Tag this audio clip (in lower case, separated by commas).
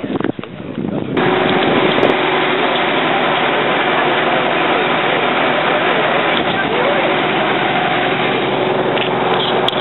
bus, speech, vehicle